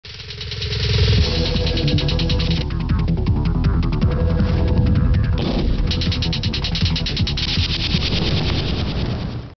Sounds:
Music

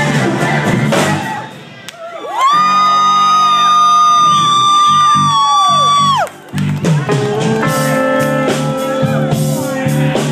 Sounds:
Guitar, Blues, Musical instrument, Music, Strum, Bass guitar, Plucked string instrument

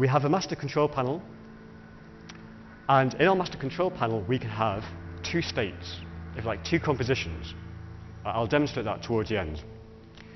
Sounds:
Speech

